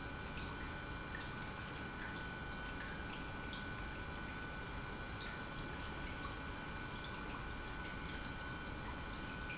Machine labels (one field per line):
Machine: pump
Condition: normal